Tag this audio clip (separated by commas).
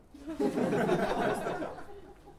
Human voice, Laughter